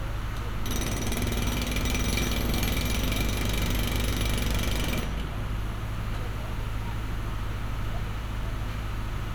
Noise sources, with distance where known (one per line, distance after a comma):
jackhammer, near